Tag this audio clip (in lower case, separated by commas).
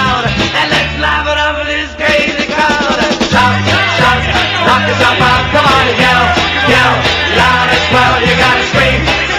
music